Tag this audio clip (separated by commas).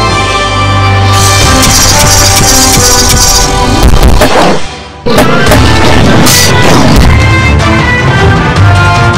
Music